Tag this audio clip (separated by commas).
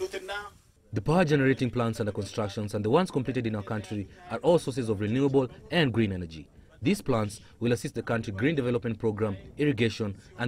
Speech